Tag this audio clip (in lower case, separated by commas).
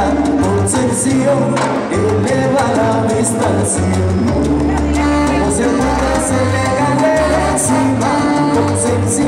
music